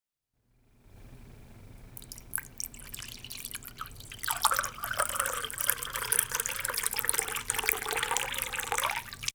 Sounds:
Liquid

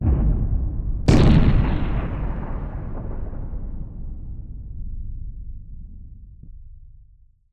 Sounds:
Explosion, gunfire

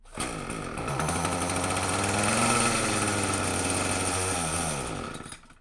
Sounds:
Engine starting, Engine

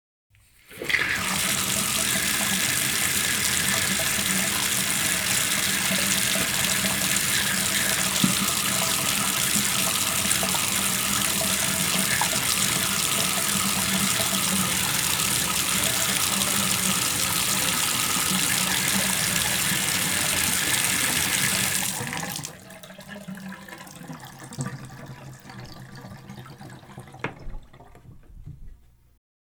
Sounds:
Sink (filling or washing), home sounds, Bathtub (filling or washing), faucet

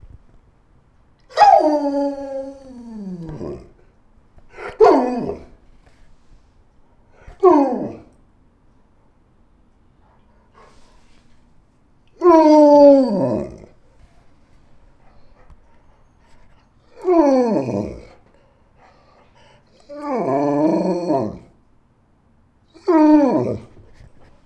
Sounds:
Animal, Domestic animals, Dog

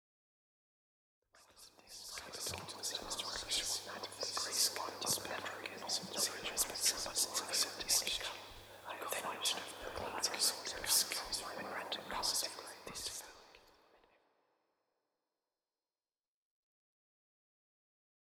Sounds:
Whispering, Human voice

